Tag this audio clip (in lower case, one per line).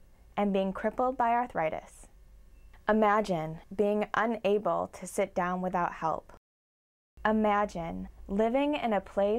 speech